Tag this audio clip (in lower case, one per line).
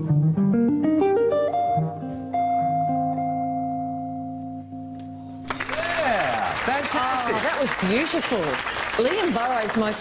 speech
inside a large room or hall
music